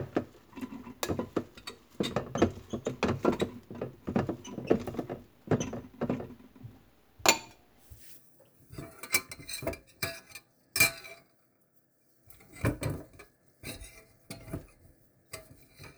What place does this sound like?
kitchen